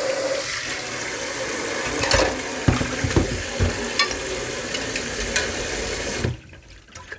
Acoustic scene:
kitchen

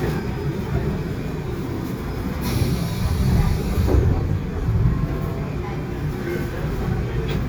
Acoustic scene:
subway train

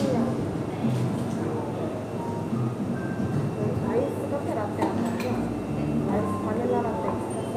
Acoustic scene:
cafe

